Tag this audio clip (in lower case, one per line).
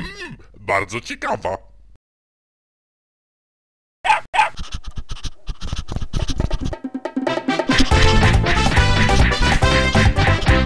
bow-wow
speech
music